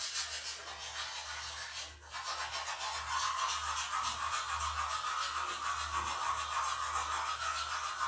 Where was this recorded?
in a restroom